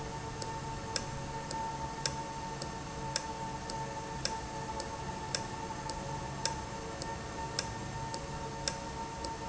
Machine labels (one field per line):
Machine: valve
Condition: normal